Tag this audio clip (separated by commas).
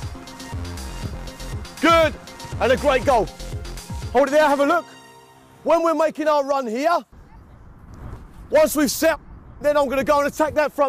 shot football